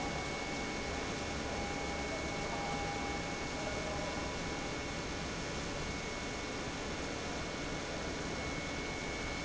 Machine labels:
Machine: pump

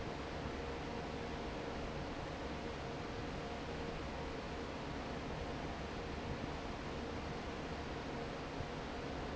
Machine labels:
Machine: fan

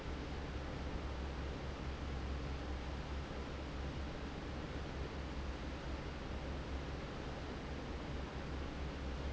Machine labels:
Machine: fan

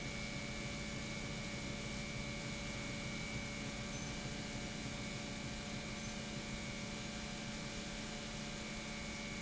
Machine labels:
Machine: pump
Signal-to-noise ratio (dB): 0 dB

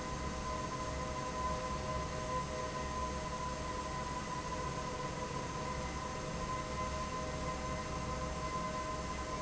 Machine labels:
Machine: fan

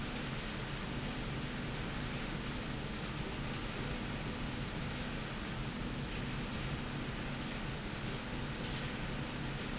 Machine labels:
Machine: slide rail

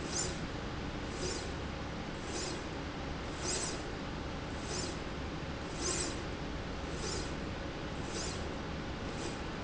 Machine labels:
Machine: slide rail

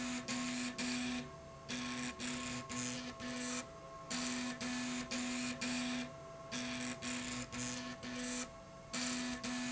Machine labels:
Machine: slide rail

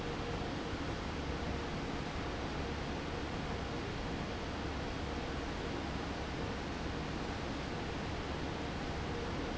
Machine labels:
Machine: fan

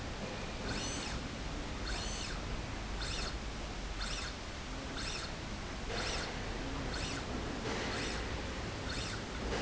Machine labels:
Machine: slide rail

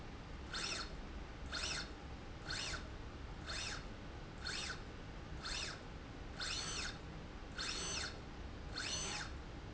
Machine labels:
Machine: slide rail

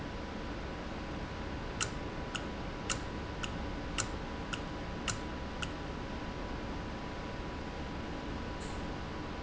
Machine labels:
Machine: valve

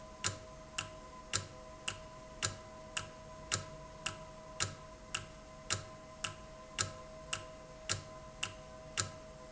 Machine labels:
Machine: valve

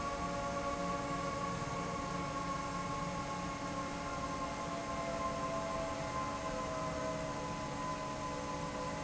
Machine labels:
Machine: fan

